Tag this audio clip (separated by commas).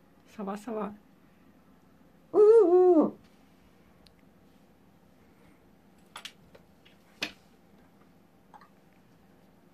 owl hooting